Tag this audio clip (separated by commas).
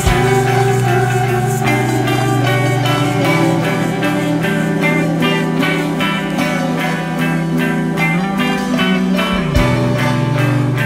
Music